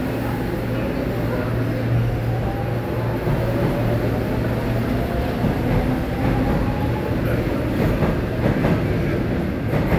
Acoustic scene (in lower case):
subway station